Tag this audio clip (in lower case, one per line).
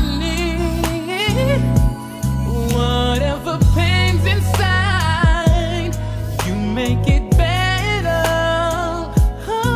soul music